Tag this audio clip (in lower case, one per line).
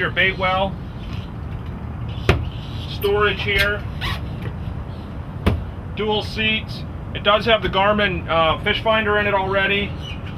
speech
boat
vehicle